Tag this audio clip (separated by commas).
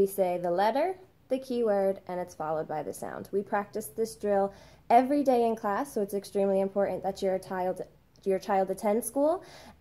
Speech